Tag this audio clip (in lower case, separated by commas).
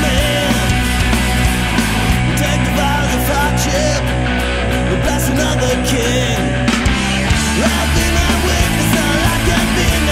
music, punk rock